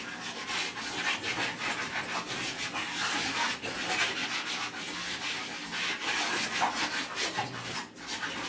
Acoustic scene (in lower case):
kitchen